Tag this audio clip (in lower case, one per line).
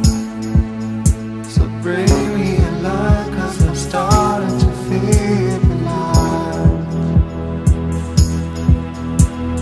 singing
soul music
music